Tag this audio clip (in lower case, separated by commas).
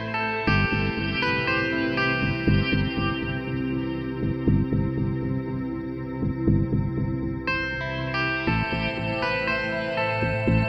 ambient music, music